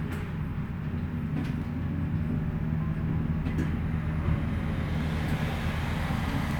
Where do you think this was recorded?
on a bus